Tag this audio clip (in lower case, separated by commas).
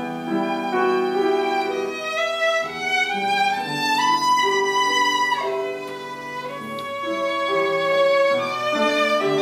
musical instrument, music, fiddle